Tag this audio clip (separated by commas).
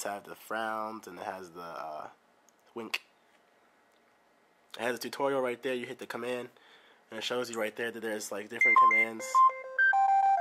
Speech